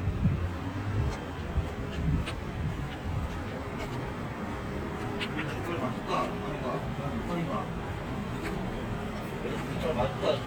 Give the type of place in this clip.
street